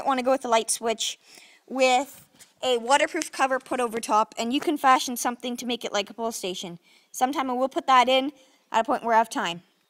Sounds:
Speech

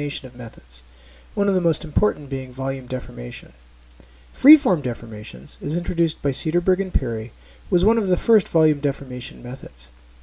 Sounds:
Speech

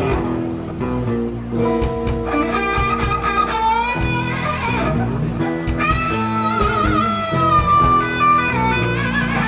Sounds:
Music, Guitar, Musical instrument, Plucked string instrument

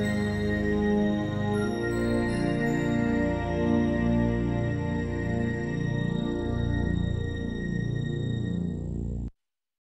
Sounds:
Television, Music

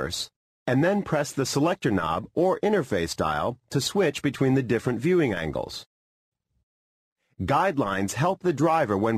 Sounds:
Speech

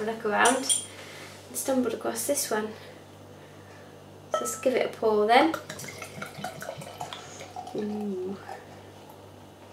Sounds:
Water tap

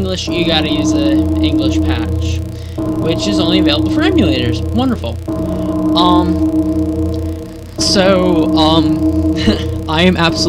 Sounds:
Speech

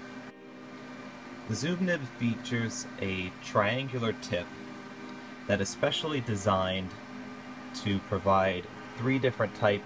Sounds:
Speech

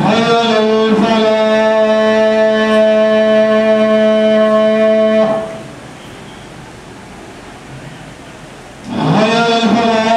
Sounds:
Speech

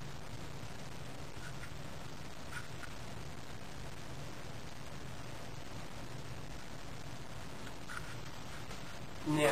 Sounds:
Speech

